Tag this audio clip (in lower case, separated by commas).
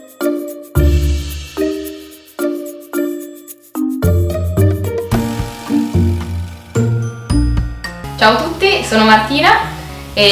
music, speech